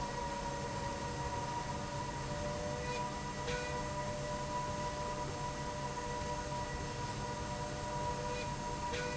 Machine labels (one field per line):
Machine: slide rail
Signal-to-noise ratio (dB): -6 dB